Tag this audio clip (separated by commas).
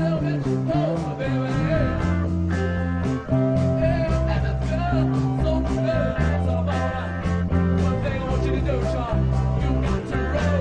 Guitar, Musical instrument, Plucked string instrument, Country, Music, Bass guitar